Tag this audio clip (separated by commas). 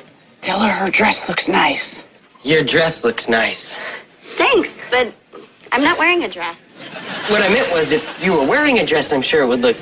Speech